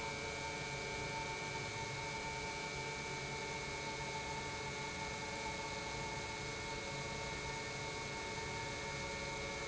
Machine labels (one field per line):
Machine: pump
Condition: normal